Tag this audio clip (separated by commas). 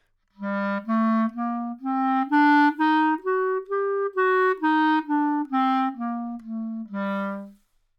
woodwind instrument, Musical instrument, Music